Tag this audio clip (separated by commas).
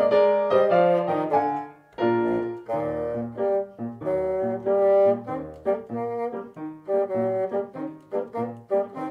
playing bassoon